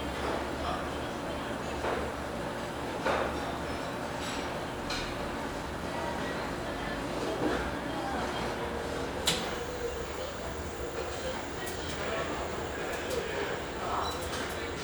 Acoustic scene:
restaurant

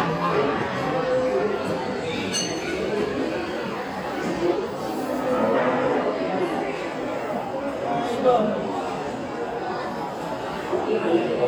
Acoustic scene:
restaurant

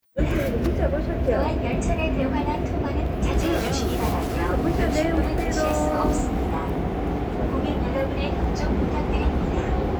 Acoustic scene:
subway train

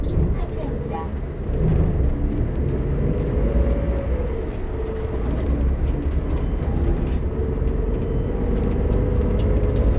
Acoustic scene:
bus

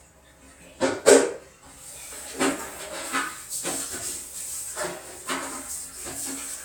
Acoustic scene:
restroom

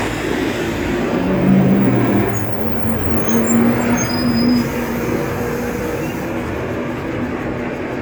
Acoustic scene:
street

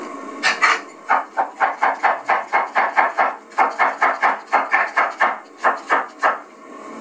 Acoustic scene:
kitchen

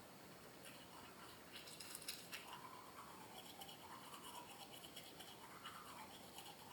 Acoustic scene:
restroom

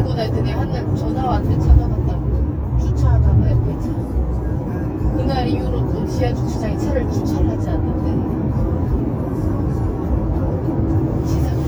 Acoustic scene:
car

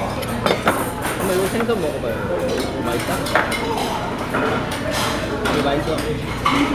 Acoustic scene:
crowded indoor space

